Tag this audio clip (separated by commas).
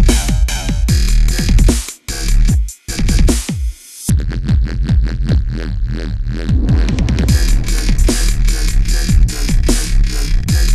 Electronic music, Music, Dubstep